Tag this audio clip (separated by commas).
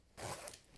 Domestic sounds, Zipper (clothing)